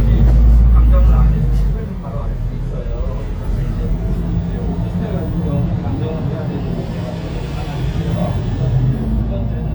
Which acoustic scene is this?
bus